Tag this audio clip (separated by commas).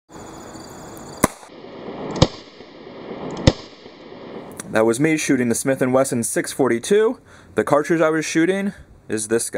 inside a small room, Speech, outside, rural or natural